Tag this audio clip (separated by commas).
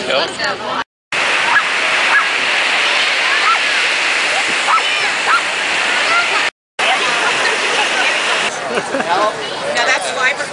Domestic animals, Dog, Animal, Speech